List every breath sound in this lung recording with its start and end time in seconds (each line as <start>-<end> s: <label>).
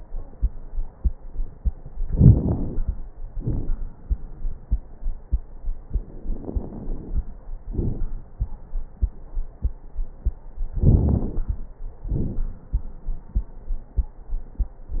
2.02-2.93 s: inhalation
2.02-2.93 s: crackles
3.28-3.75 s: exhalation
3.28-3.75 s: crackles
6.39-7.30 s: inhalation
6.39-7.30 s: crackles
7.71-8.22 s: exhalation
7.71-8.22 s: crackles
10.75-11.65 s: inhalation
10.75-11.65 s: crackles
12.08-12.52 s: exhalation
12.08-12.52 s: crackles